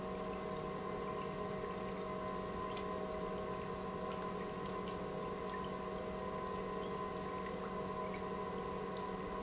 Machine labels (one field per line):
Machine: pump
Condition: normal